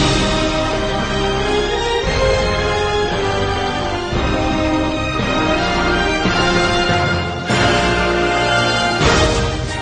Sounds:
Music

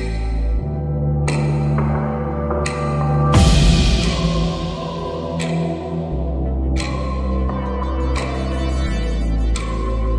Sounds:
Music

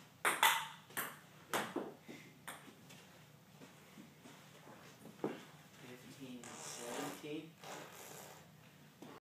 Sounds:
Speech

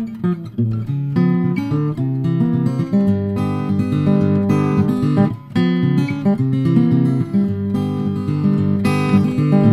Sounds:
Plucked string instrument, Strum, Music, Acoustic guitar, Guitar, Musical instrument

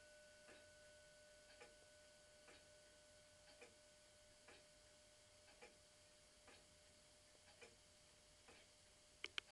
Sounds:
Tick

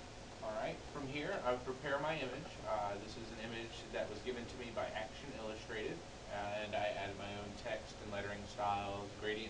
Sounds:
Speech

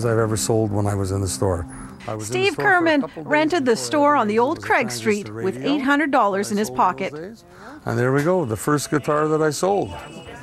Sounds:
Speech, Music

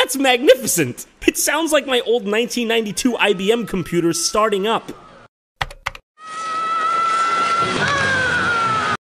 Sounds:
Speech

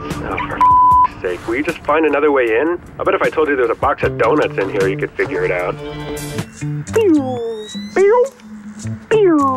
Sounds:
Speech, Music

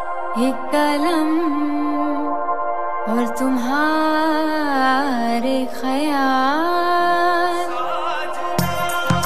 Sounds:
Singing, Music

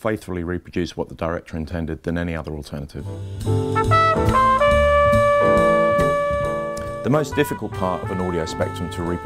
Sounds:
Speech, Music

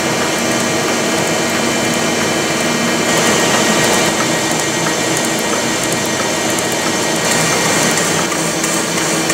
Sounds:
Engine, Heavy engine (low frequency)

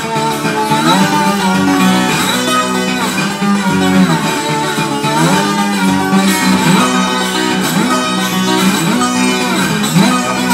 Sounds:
Music, Guitar, Plucked string instrument, Musical instrument, Acoustic guitar

